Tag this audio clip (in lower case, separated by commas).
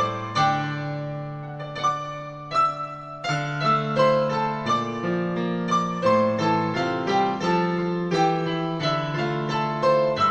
music